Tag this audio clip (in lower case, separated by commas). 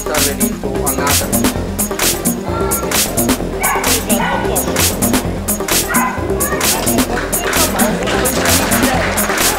dog, bow-wow, speech, music, pets, animal